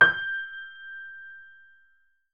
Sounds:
Music, Musical instrument, Piano, Keyboard (musical)

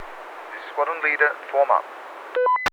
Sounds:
Speech, Human voice, man speaking

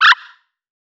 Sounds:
Animal

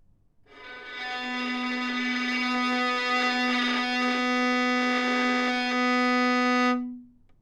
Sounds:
Musical instrument, Bowed string instrument, Music

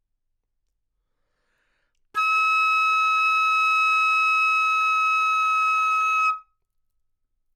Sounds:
Music, Musical instrument, woodwind instrument

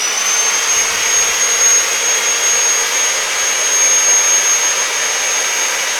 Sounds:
Sawing, Tools

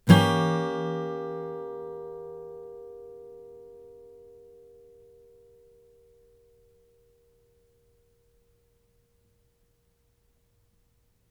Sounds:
Plucked string instrument, Music, Guitar, Musical instrument, Strum

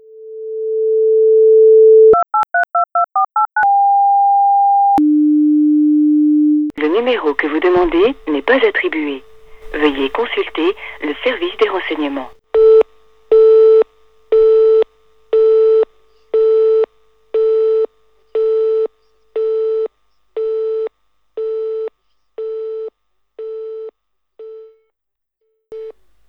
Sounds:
Telephone, Alarm

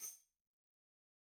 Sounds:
Music, Percussion, Tambourine, Musical instrument

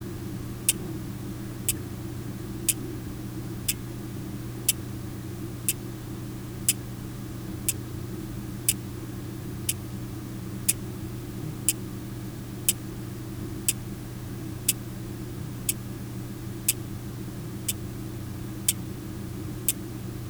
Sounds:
Mechanisms, Clock

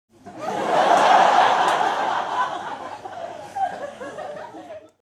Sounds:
Human voice, Human group actions, Laughter, Crowd

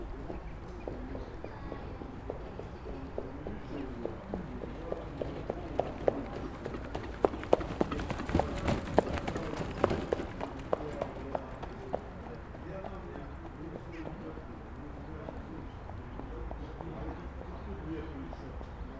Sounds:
Animal, livestock

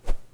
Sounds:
swoosh

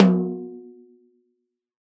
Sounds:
Drum, Music, Snare drum, Percussion, Musical instrument

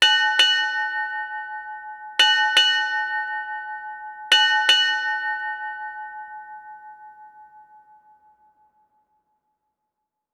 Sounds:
Water vehicle, Vehicle

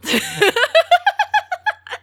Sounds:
Laughter, Human voice

